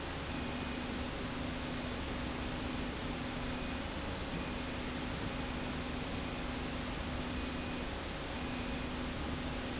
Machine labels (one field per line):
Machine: slide rail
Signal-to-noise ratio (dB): -6 dB